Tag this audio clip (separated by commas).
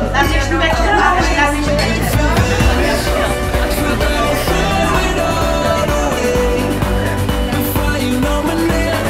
Tender music, Music